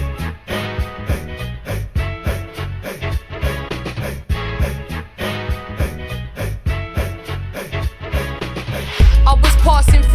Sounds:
music

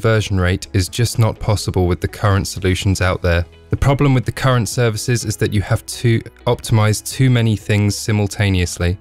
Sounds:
speech

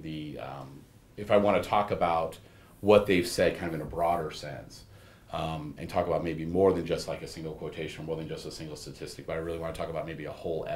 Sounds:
speech

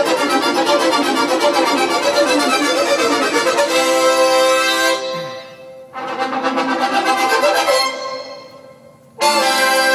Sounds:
music, sound effect

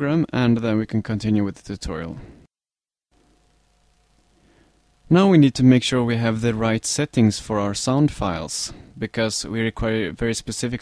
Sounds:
speech

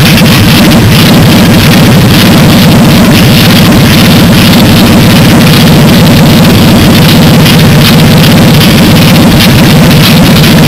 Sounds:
medium engine (mid frequency), engine

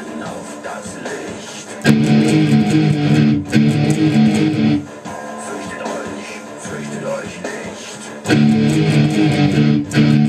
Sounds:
music, acoustic guitar, musical instrument, plucked string instrument, guitar

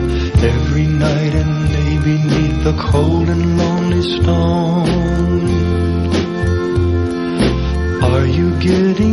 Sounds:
music

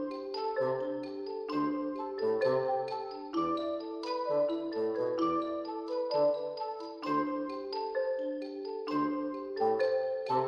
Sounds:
music

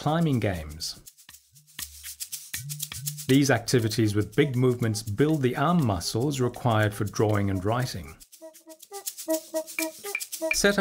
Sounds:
speech, music

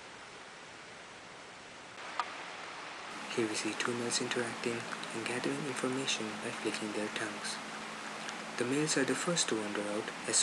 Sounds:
outside, rural or natural, speech

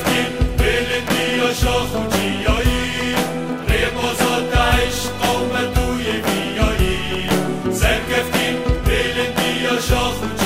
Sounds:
music

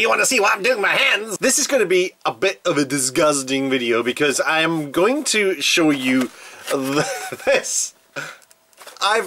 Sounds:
speech

